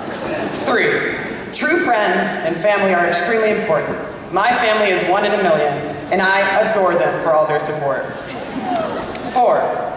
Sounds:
Speech, monologue, man speaking

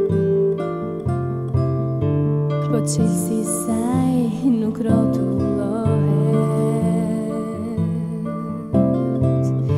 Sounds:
Music

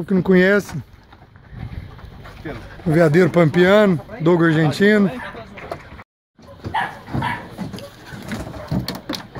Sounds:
sea lion barking

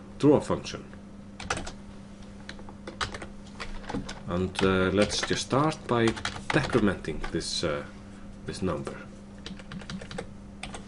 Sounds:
Speech, Typing

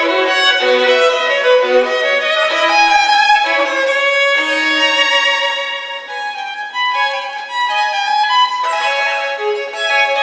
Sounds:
Music, Bowed string instrument, Violin, Musical instrument

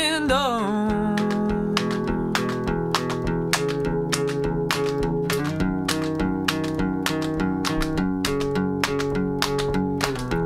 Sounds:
Music

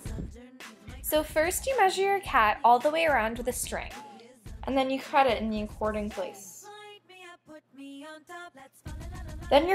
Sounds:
Speech, Music

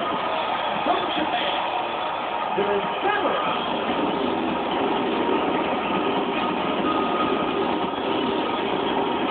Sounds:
Music, Speech

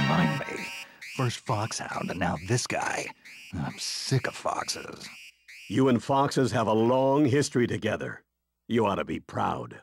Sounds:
Speech

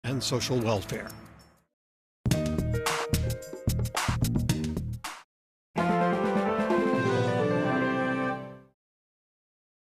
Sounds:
Television, Music, Speech

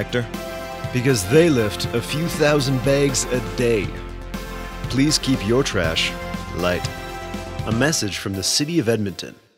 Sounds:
Speech, Music

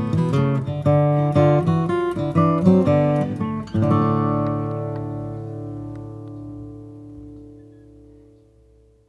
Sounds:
Acoustic guitar

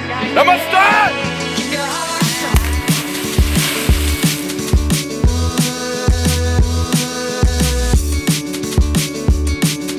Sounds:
Music, Speech

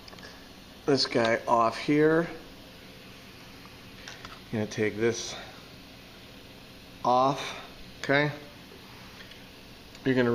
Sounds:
Speech

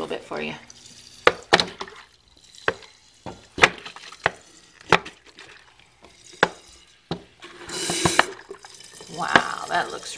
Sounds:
Speech

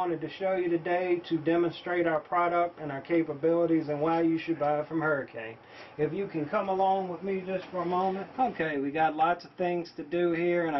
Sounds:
Speech

